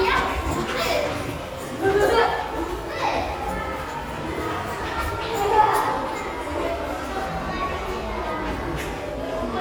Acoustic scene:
crowded indoor space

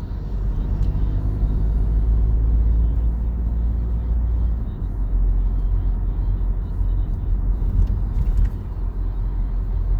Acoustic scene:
car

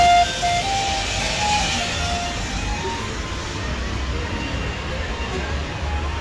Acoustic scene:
residential area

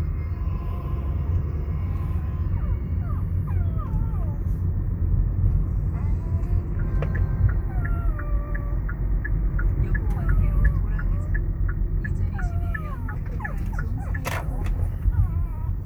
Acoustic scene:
car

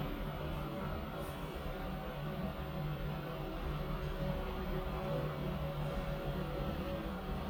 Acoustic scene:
elevator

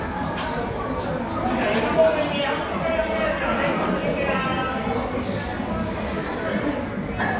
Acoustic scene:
cafe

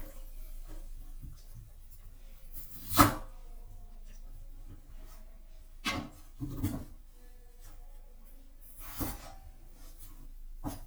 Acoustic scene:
kitchen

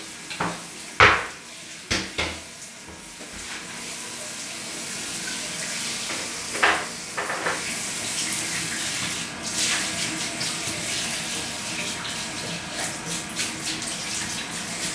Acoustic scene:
restroom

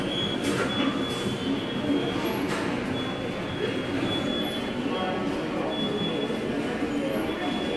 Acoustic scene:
subway station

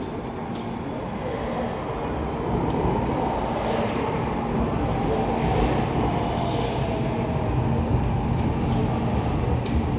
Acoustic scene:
subway station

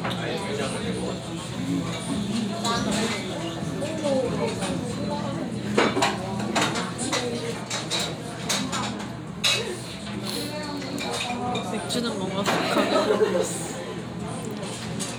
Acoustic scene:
restaurant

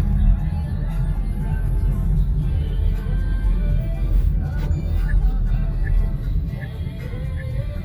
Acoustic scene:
car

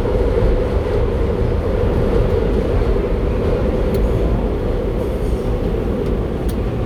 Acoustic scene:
subway train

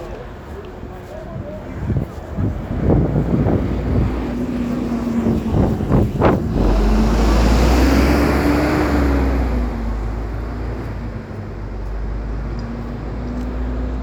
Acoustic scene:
street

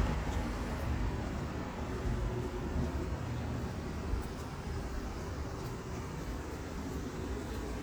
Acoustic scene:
residential area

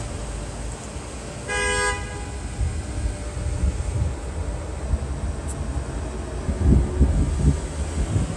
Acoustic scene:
street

